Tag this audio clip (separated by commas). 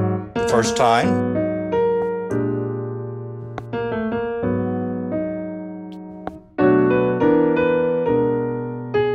Piano, Music, Musical instrument, Jazz, Classical music, Electric piano, Keyboard (musical)